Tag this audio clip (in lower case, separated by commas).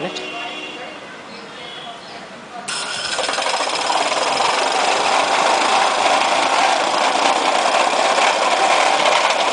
speech